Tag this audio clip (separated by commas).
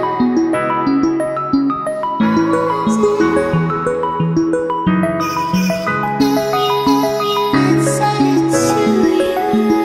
Hum